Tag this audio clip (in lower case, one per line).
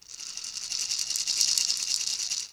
percussion
rattle (instrument)
music
musical instrument